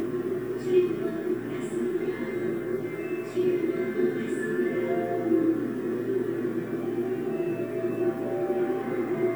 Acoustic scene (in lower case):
subway train